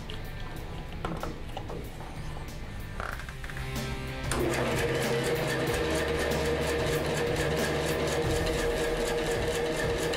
A whirring noise with music in the background